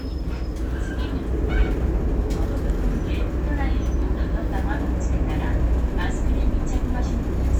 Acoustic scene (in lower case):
bus